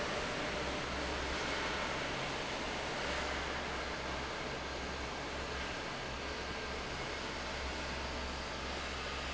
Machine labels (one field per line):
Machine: fan